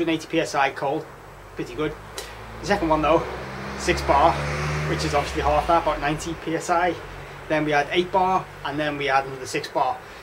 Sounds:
speech, vehicle

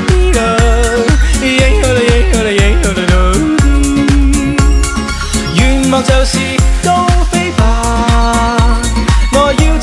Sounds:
yodelling

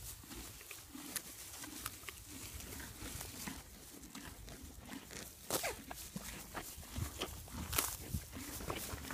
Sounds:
horse neighing

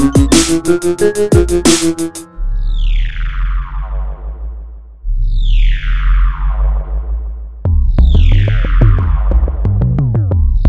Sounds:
music, techno, trance music, electronic music

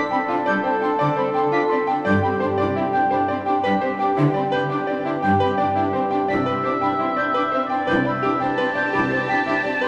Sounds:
music

